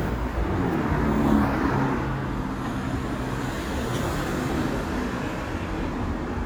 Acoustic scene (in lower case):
street